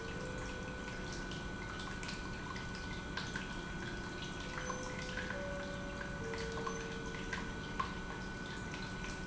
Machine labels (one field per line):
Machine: pump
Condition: normal